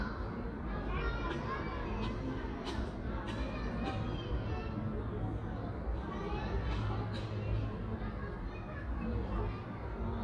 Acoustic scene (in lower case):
residential area